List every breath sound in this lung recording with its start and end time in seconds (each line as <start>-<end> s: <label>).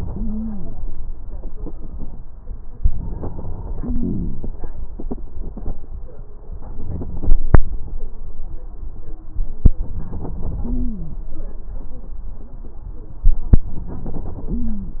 0.06-0.69 s: stridor
2.80-4.38 s: inhalation
6.88-7.61 s: inhalation
9.75-11.07 s: inhalation
10.65-11.22 s: stridor
13.71-15.00 s: inhalation
14.51-15.00 s: stridor